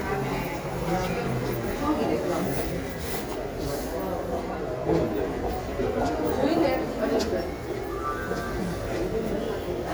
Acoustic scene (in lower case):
crowded indoor space